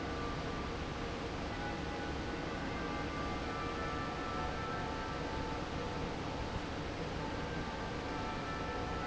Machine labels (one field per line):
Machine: fan